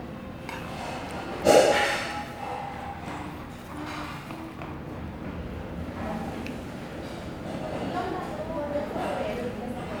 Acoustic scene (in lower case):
restaurant